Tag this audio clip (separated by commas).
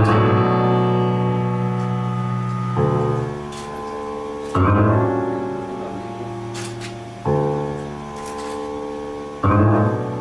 Music